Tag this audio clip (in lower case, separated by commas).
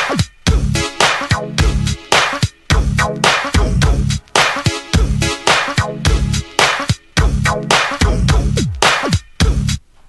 funk, music